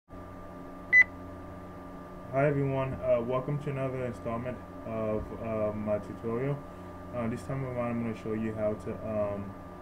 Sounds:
speech

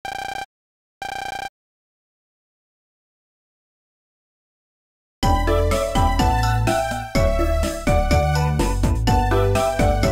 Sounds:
music

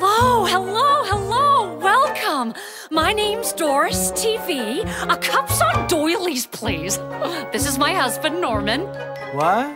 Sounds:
speech
inside a small room
music

